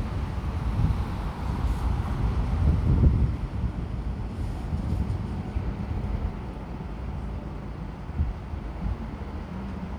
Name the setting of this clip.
street